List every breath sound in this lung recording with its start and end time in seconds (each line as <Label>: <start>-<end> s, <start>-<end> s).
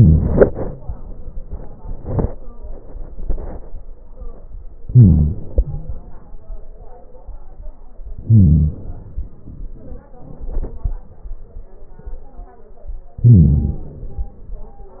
Inhalation: 4.80-5.68 s, 8.21-8.89 s, 13.20-14.01 s